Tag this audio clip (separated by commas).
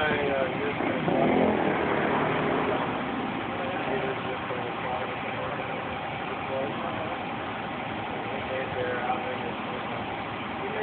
Speech